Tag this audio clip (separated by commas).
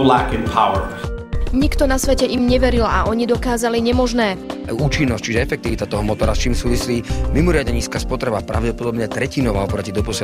Music, Speech